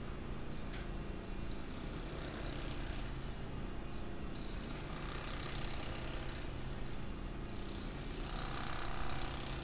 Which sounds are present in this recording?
engine of unclear size, jackhammer